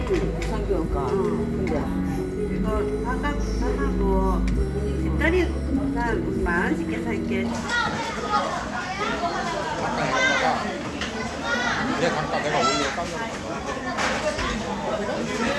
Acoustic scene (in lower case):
crowded indoor space